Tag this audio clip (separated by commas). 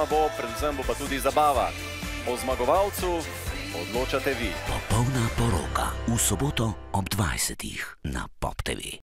Speech, Music